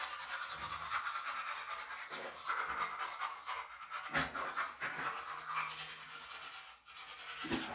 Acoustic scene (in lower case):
restroom